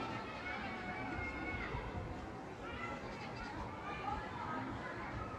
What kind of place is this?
park